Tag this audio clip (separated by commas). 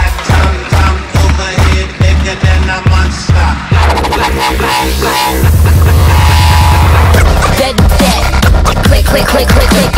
Music, Electronic music, Dubstep